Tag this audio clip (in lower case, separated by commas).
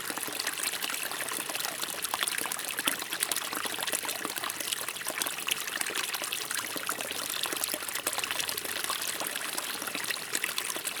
stream, water